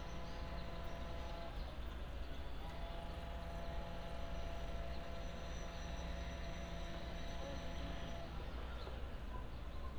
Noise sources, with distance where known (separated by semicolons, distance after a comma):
engine of unclear size, far